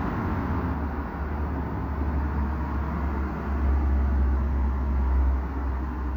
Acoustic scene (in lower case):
street